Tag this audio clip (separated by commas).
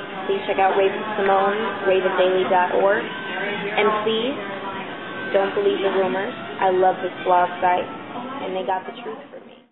Speech